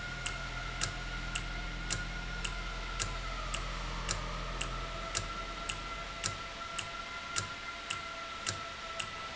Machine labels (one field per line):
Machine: valve